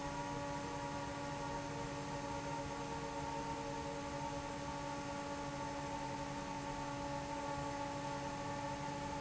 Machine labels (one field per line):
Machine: fan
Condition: normal